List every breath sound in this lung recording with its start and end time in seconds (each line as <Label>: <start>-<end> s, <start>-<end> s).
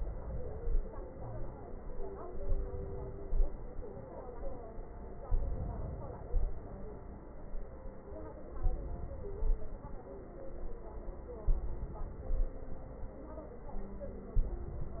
Inhalation: 2.32-3.25 s, 5.28-6.29 s, 8.61-9.40 s, 11.50-12.29 s, 14.42-15.00 s
Exhalation: 0.00-0.76 s, 3.23-3.87 s, 6.33-6.78 s, 9.41-10.03 s, 12.33-12.98 s